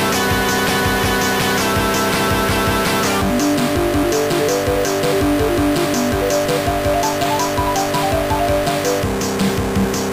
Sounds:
Music, Soundtrack music

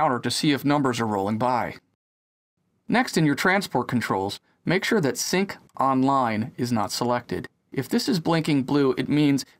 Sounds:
Speech

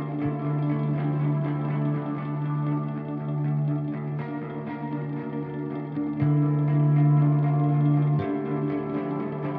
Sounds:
Music

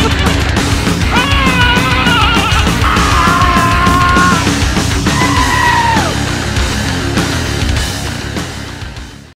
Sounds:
Music, Bleat, Sheep

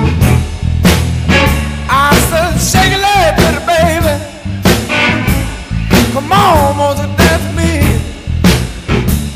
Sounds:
Music

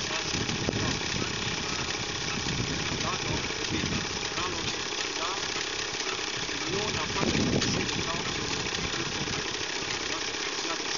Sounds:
Speech

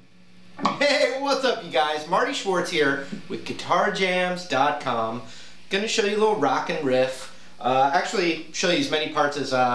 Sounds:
Speech

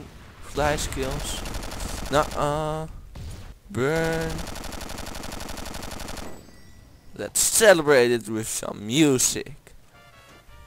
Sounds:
Fusillade

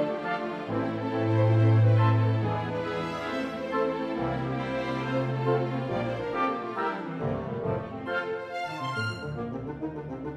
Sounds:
Orchestra, Music

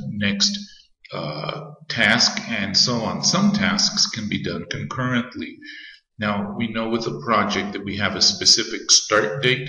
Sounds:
Speech

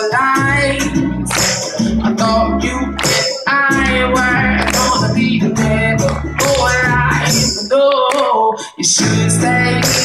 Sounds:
Singing, Tambourine, Music, Percussion, Bowed string instrument, Musical instrument

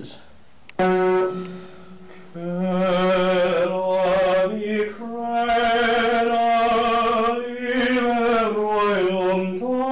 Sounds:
Music, Singing

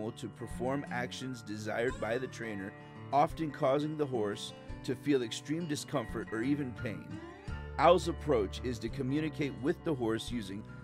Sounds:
Music, Speech

